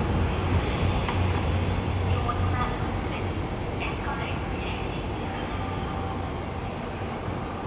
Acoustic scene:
subway station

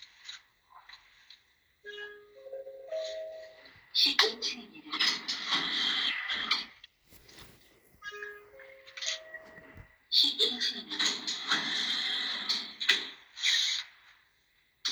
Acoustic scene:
elevator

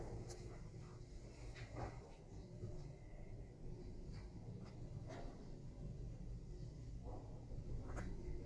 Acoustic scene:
elevator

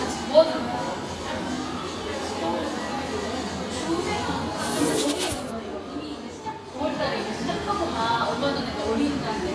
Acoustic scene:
crowded indoor space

